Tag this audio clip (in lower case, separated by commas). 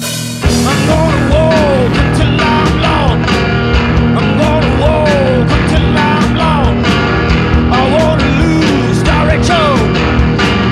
music, psychedelic rock